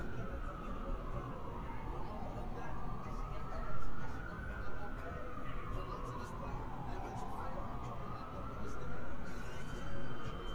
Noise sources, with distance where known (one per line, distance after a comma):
siren
music from an unclear source